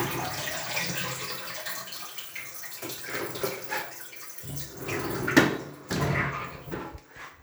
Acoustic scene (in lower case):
restroom